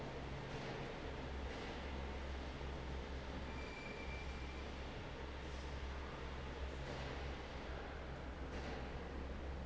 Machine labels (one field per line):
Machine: fan